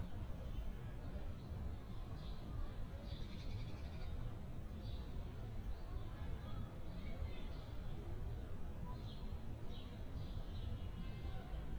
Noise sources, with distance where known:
background noise

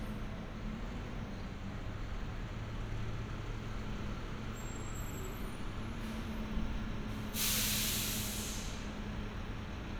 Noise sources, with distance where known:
large-sounding engine, near

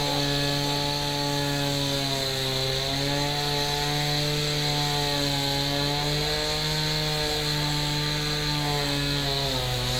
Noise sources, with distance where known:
unidentified powered saw, near

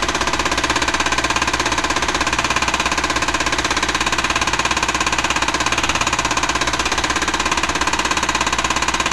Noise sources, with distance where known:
jackhammer, near

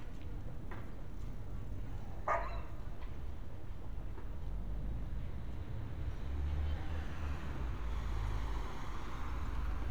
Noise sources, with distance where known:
medium-sounding engine; dog barking or whining

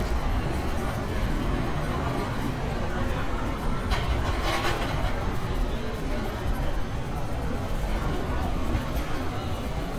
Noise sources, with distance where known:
large-sounding engine, near; unidentified human voice, near

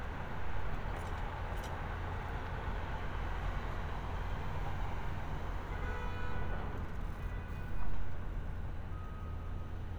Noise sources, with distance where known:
car horn, far

